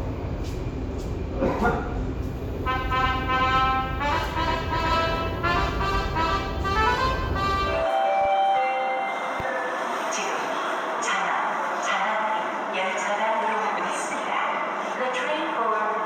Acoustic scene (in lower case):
subway station